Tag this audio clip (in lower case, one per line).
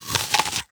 mastication